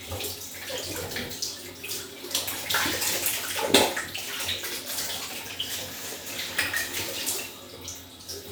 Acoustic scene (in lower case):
restroom